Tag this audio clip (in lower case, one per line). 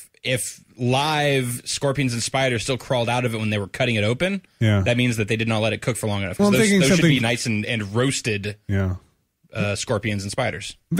speech